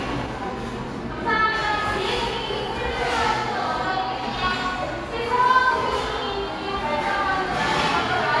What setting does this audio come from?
cafe